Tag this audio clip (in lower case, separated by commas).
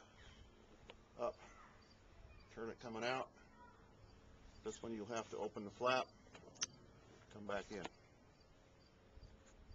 speech